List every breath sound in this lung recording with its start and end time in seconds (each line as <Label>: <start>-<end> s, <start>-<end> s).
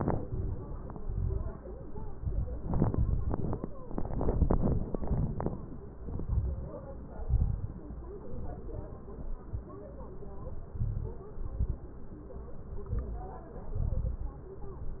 Inhalation: 0.00-0.62 s, 2.17-3.17 s, 5.93-6.80 s, 8.21-8.93 s, 10.70-11.30 s, 12.79-13.39 s
Exhalation: 0.91-1.54 s, 3.90-4.90 s, 7.16-7.88 s, 9.03-9.75 s, 11.31-11.91 s, 13.76-14.36 s
Crackles: 0.00-0.62 s, 0.91-1.54 s, 2.17-3.17 s, 3.90-4.90 s, 5.93-6.80 s, 7.16-7.88 s, 8.21-8.93 s, 9.03-9.75 s, 10.70-11.30 s, 11.31-11.91 s, 12.79-13.39 s, 13.76-14.36 s